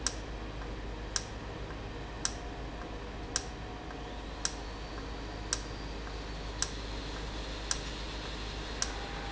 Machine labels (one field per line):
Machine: valve